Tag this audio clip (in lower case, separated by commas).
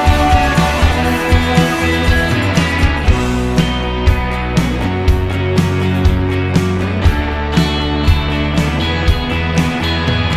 music